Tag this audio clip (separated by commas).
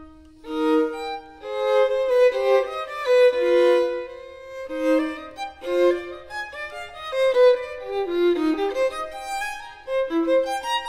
fiddle, Bowed string instrument